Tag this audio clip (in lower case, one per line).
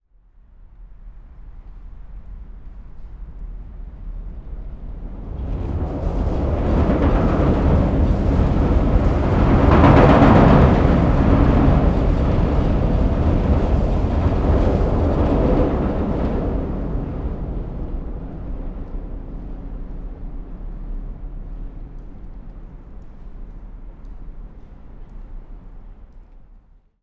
train
rail transport
subway
vehicle